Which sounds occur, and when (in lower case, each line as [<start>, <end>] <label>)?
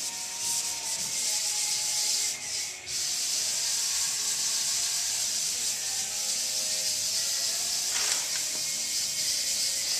[0.00, 9.95] male singing
[0.00, 9.95] music
[0.00, 9.95] rub
[0.00, 9.95] sanding
[7.91, 8.17] generic impact sounds